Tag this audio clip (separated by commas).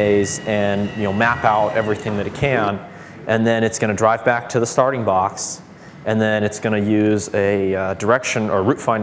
Speech